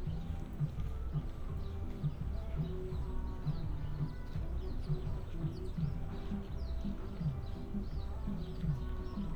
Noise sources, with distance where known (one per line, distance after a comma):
music from an unclear source